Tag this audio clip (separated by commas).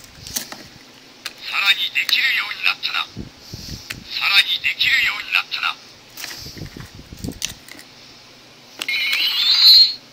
Speech